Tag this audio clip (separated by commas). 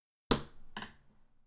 thud